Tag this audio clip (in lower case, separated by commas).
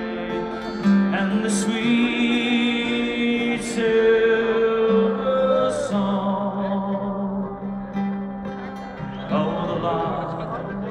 music, speech